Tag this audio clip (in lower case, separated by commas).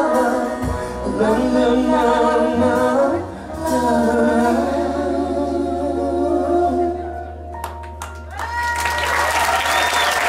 male singing, singing, vocal music, music, a capella